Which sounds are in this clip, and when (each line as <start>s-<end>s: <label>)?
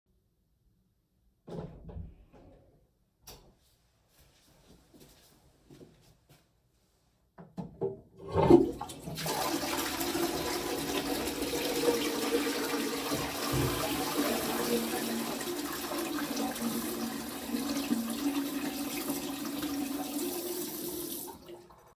3.1s-3.6s: light switch
7.8s-21.6s: toilet flushing
14.0s-15.4s: running water
16.5s-21.4s: running water